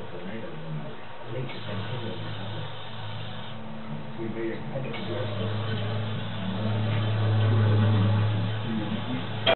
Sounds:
speech, inside a small room

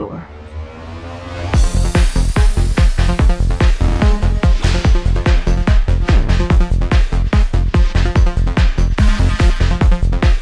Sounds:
music, trance music

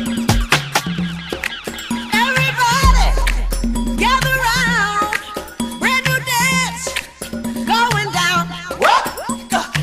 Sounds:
music of africa, music

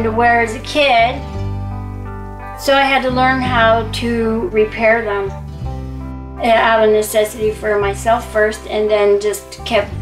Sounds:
speech, music

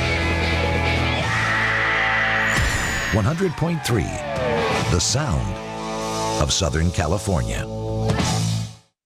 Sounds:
speech, music

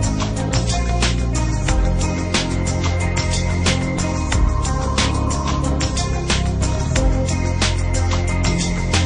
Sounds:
music

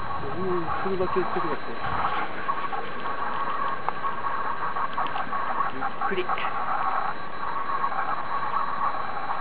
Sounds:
speech

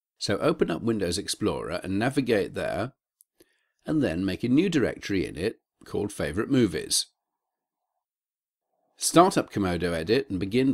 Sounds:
inside a small room, speech

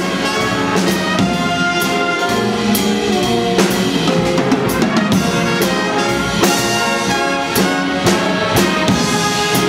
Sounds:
music, jazz

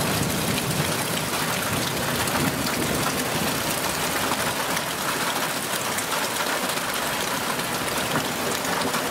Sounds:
hail

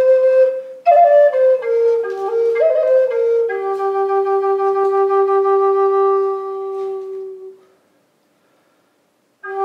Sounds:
music, flute, woodwind instrument

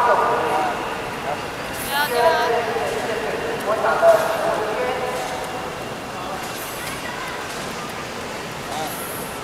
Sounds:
speech, run

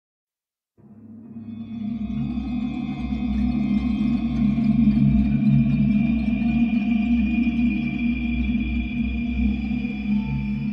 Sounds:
soundtrack music, video game music, music

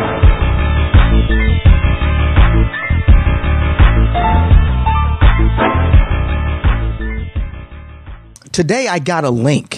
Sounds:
speech, music

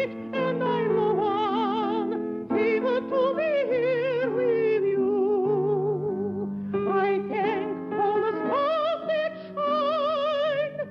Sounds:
music, female singing

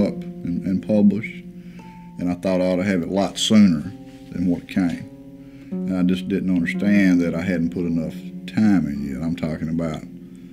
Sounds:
speech, music

